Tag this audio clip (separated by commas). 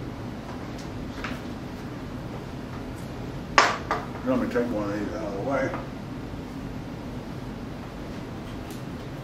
Speech